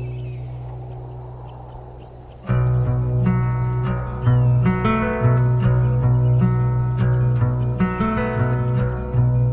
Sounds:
Music

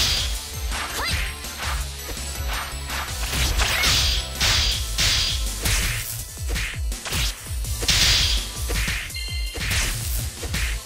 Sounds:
Music

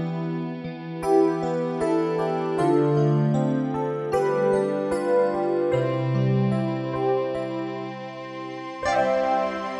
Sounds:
Music

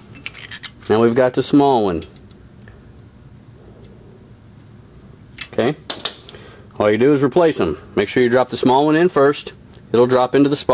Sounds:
Speech, Tools

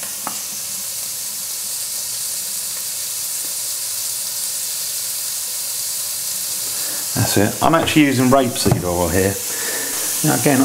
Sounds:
Speech

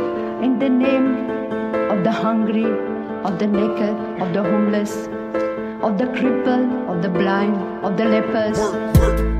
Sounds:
Music, Speech

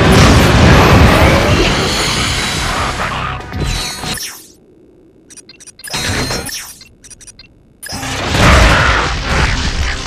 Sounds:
Music

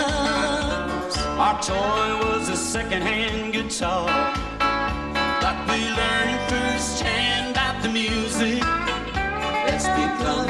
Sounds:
Music, Country

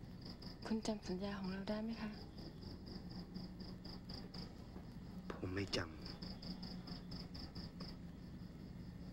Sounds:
Speech

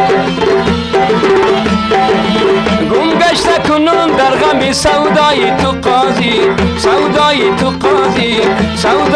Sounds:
Music

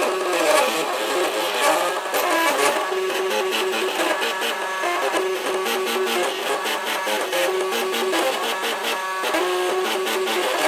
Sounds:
Printer

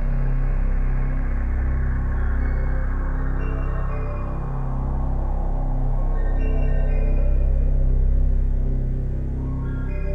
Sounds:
Video game music, Music

